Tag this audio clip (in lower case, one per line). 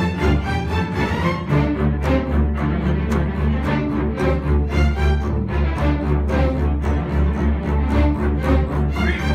playing double bass